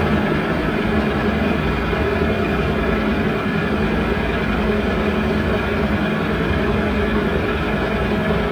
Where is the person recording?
on a street